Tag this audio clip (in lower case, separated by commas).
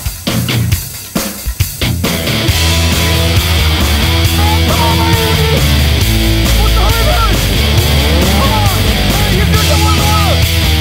music, speech